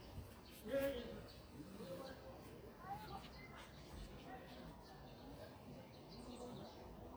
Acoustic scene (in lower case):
park